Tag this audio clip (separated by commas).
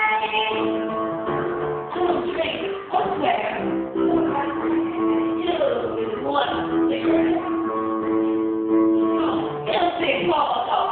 Female singing, Music, Speech